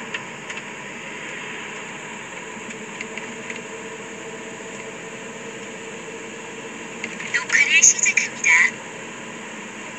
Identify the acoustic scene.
car